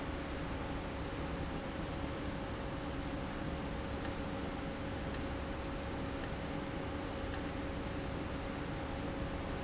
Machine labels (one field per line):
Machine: valve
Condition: abnormal